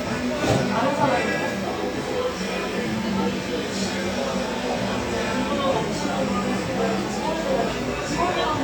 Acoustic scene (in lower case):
cafe